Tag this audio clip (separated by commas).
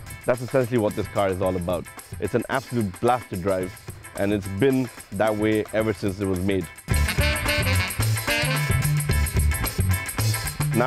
Music, Speech